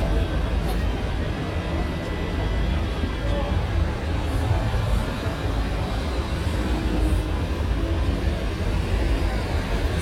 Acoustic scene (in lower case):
street